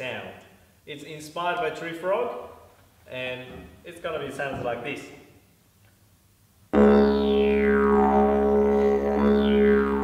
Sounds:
playing didgeridoo

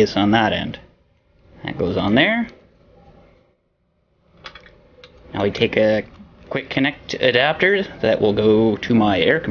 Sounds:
Speech, inside a small room

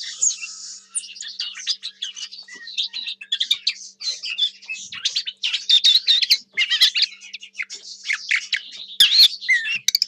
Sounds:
warbler chirping

